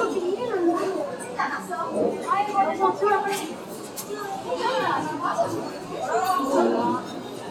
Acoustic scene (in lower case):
restaurant